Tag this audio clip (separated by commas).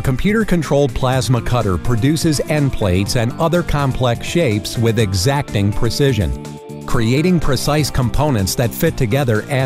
Speech, Music